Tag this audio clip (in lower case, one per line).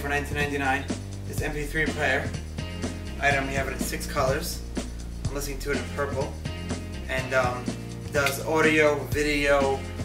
music
speech